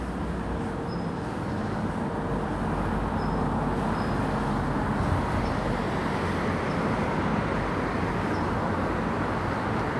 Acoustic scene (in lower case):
residential area